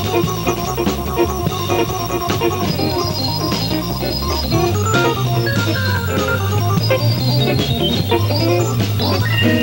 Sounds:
Piano, Keyboard (musical), Electric piano, Hammond organ, Organ

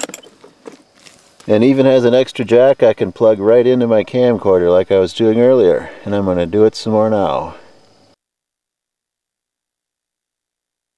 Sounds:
Speech

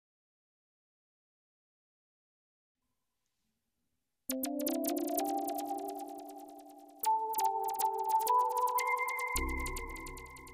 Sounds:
Music

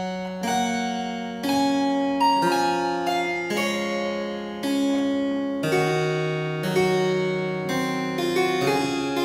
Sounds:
playing harpsichord

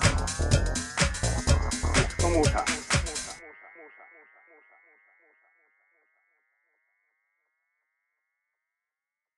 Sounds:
Music, Disco

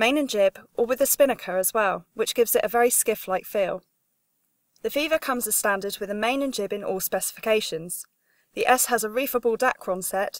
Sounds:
Speech

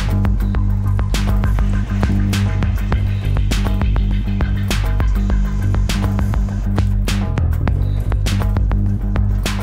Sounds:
Music

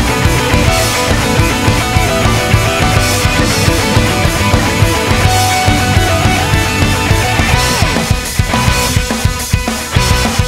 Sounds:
Guitar, Musical instrument, Plucked string instrument, Music, Strum

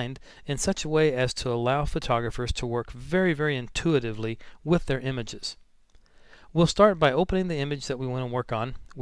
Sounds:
Speech

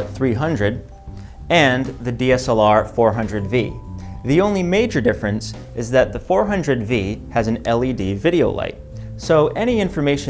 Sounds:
Music, Speech

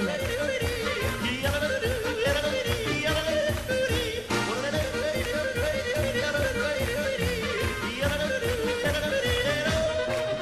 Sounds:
yodelling

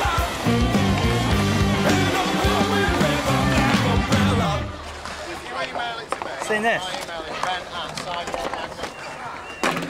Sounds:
Skateboard, Speech, Music

